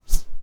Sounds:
Whoosh

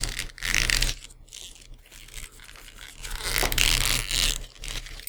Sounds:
Squeak

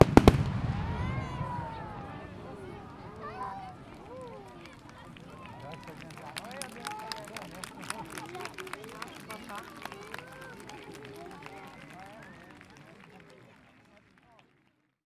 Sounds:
Crowd, Fireworks, Explosion, Human group actions

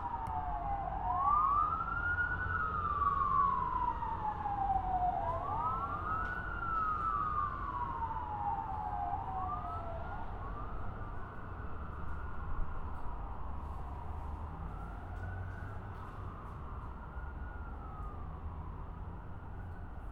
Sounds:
Motor vehicle (road), Vehicle, Siren, Alarm

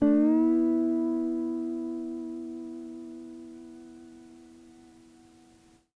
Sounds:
Plucked string instrument, Guitar, Music, Musical instrument

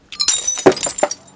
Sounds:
Glass, Shatter

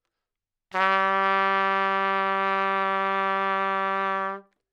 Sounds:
Brass instrument, Music, Musical instrument, Trumpet

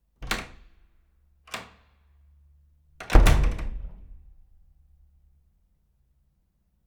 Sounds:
Door, Domestic sounds, Slam

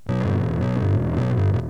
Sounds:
Plucked string instrument, Bass guitar, Guitar, Music, Musical instrument

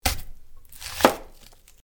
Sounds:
Domestic sounds

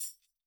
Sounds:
Percussion, Music, Tambourine, Musical instrument

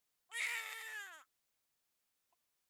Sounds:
sobbing, Human voice

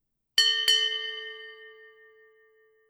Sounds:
Bell

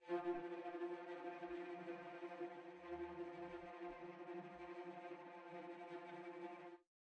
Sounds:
Bowed string instrument, Musical instrument, Music

